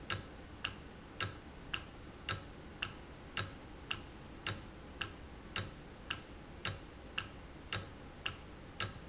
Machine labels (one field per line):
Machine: valve